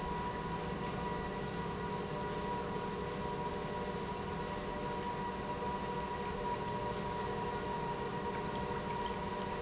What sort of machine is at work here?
pump